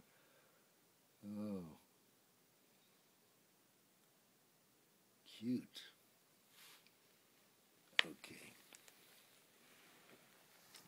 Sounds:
speech

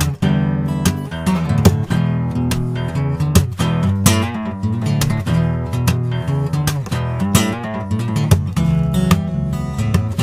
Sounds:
music

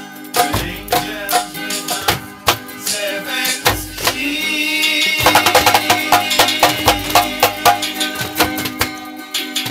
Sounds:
music

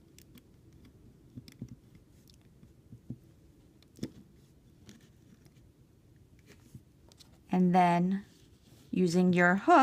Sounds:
speech
inside a small room

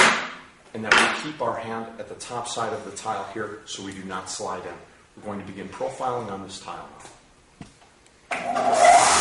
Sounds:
speech

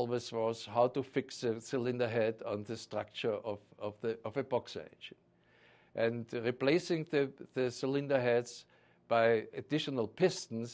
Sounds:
speech

